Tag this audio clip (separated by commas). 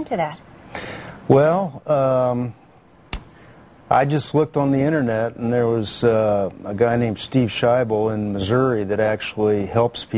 Speech